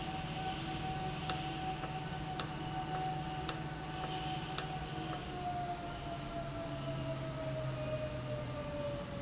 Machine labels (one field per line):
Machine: valve